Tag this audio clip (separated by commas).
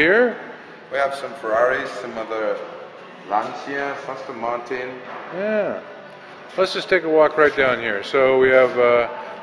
Speech